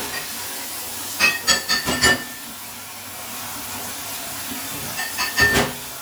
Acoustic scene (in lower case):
kitchen